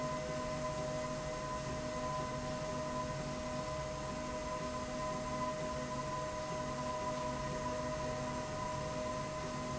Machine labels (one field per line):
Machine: slide rail